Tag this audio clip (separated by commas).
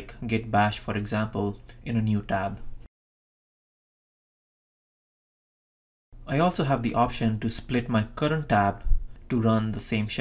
Speech